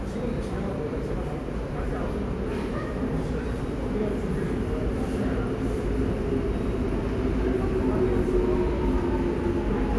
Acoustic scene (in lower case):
subway station